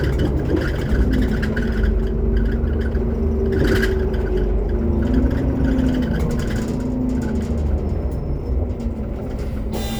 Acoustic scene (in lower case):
bus